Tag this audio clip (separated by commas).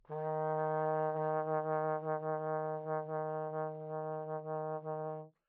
Musical instrument, Brass instrument, Music